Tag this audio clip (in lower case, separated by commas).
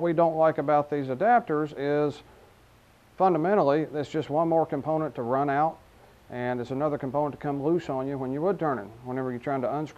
speech